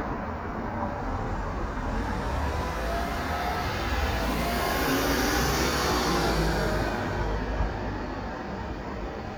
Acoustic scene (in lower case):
street